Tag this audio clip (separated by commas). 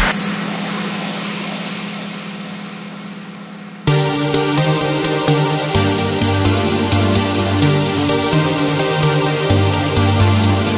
Music